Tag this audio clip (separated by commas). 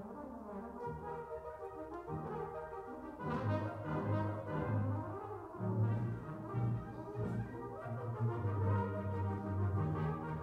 Musical instrument, Music, Violin